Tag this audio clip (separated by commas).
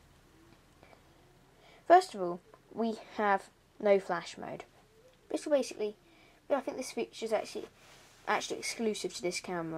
Speech